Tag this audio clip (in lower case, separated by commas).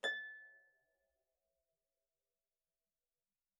music, musical instrument, harp